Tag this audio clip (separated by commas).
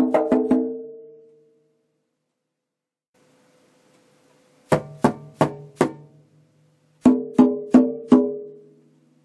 playing bongo